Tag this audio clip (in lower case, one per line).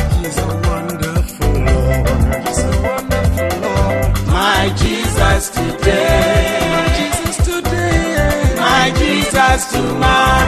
music
christmas music